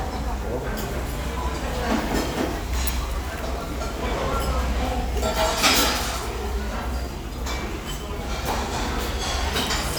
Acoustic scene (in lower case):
restaurant